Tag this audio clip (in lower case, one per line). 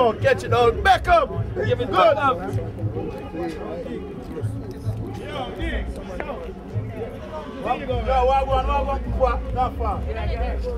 speech